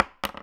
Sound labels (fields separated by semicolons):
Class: object falling; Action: being thrown